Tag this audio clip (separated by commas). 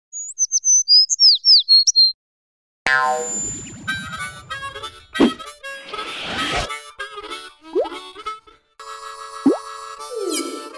tweet, outside, rural or natural, Harmonica, Music